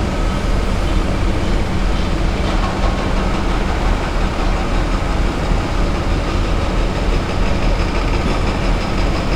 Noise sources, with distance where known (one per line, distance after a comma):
unidentified impact machinery